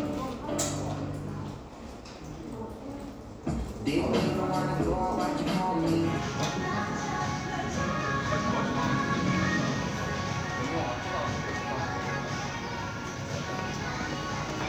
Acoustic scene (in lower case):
crowded indoor space